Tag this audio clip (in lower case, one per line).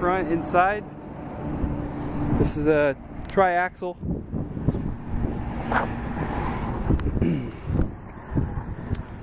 speech